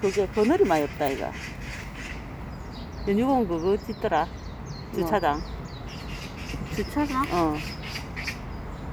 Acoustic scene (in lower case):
park